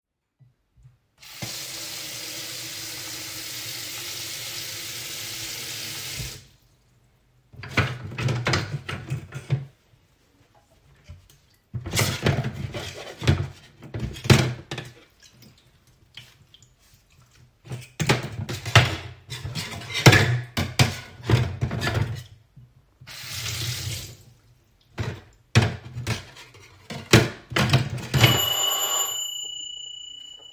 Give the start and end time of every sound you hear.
[1.09, 6.64] running water
[7.51, 9.86] cutlery and dishes
[11.57, 15.27] cutlery and dishes
[16.77, 22.48] cutlery and dishes
[22.99, 24.48] running water
[24.80, 28.32] cutlery and dishes
[27.99, 30.53] bell ringing

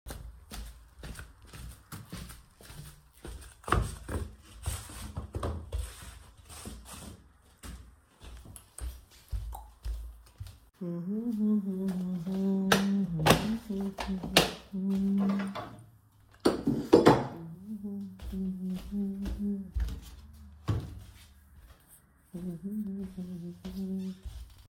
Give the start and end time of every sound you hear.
[0.02, 24.68] footsteps
[12.70, 15.94] light switch
[16.35, 17.64] cutlery and dishes

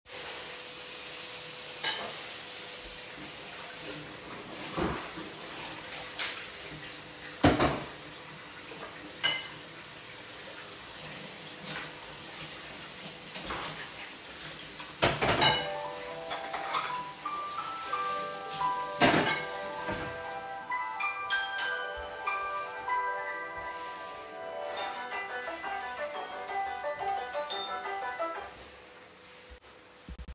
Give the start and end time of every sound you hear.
[0.00, 20.43] running water
[0.01, 30.35] vacuum cleaner
[1.80, 2.23] cutlery and dishes
[7.35, 8.00] cutlery and dishes
[9.17, 9.80] cutlery and dishes
[14.99, 15.74] cutlery and dishes
[15.37, 28.80] phone ringing
[16.21, 17.23] cutlery and dishes
[18.93, 19.68] cutlery and dishes

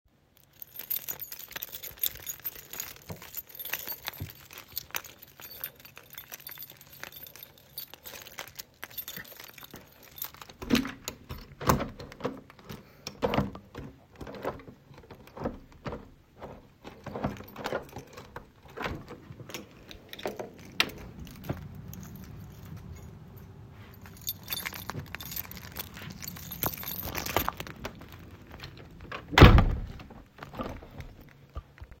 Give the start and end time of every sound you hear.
[0.58, 10.95] keys
[10.57, 30.07] door
[19.98, 20.76] keys
[24.11, 28.09] keys

